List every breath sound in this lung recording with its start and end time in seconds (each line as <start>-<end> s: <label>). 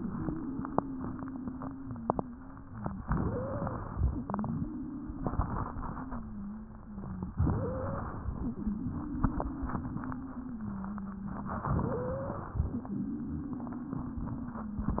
0.00-3.00 s: exhalation
0.00-3.00 s: wheeze
3.02-3.86 s: wheeze
3.02-4.09 s: inhalation
4.23-7.32 s: exhalation
4.23-7.32 s: wheeze
7.38-8.15 s: wheeze
7.38-8.34 s: inhalation
8.35-11.68 s: exhalation
8.35-11.68 s: wheeze
11.74-12.48 s: wheeze
11.74-12.65 s: inhalation
12.73-15.00 s: exhalation
12.73-15.00 s: wheeze